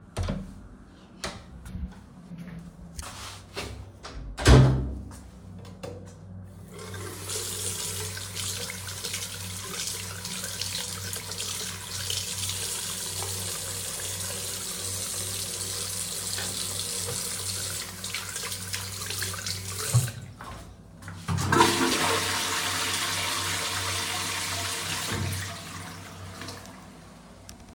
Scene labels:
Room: bathroom; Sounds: door (more than once), footsteps, running water, toilet flushing

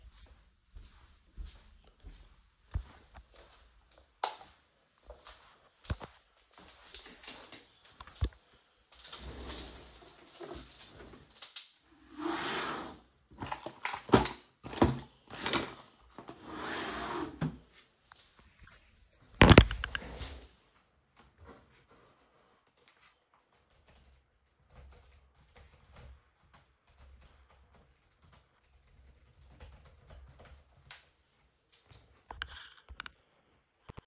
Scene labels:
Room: office; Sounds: footsteps, light switch, wardrobe or drawer (more than once), keyboard typing

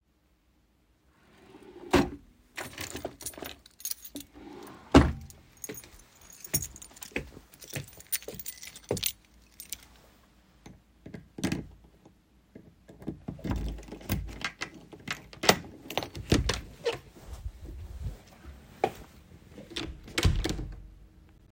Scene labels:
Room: bedroom; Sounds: wardrobe or drawer (more than once), keys, footsteps, door (more than once)

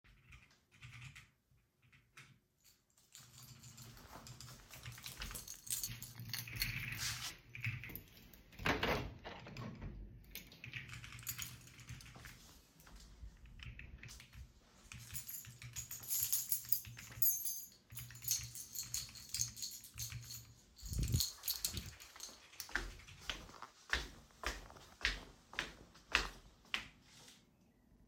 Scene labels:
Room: bedroom; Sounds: keyboard typing, keys, window, footsteps

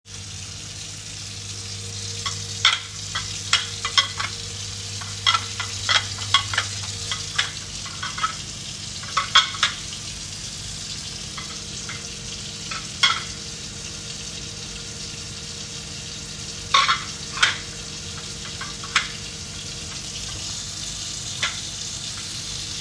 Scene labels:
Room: kitchen; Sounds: running water, cutlery and dishes

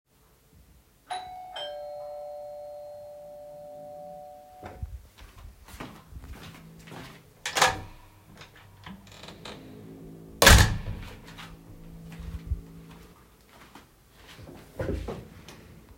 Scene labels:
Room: hallway; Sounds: bell ringing, footsteps, door

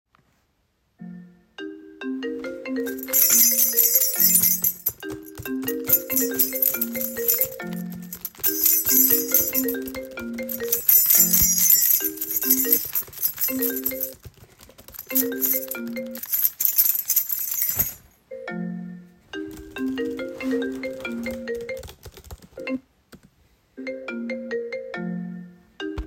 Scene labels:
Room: bedroom; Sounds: phone ringing, keys, keyboard typing

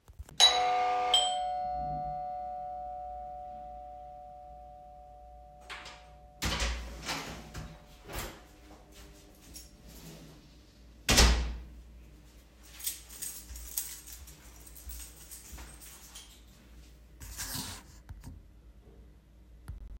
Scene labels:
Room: hallway; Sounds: bell ringing, door (more than once), footsteps, keys

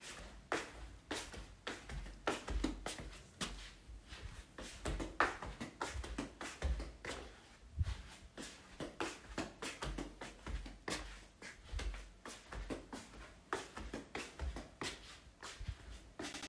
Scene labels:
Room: bedroom; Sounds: footsteps

